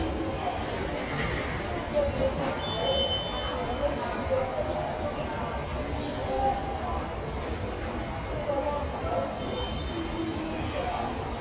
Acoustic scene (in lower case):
subway station